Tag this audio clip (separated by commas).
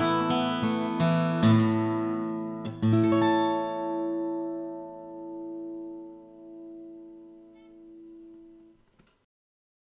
Musical instrument, Music, Guitar, Plucked string instrument, Acoustic guitar